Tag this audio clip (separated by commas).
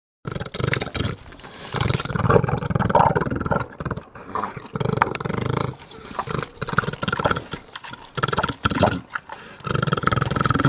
pig oinking